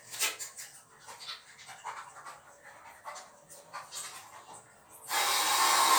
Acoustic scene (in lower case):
restroom